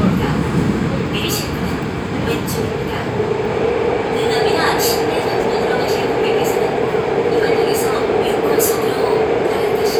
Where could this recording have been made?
on a subway train